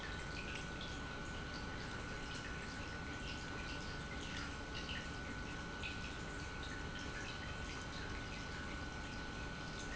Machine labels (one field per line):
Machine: pump